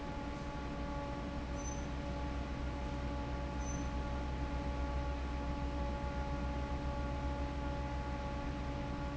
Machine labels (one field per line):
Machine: fan